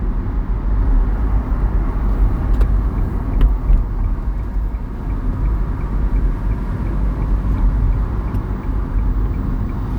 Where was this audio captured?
in a car